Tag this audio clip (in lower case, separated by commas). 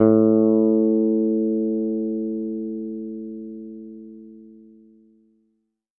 guitar, music, musical instrument, bass guitar, plucked string instrument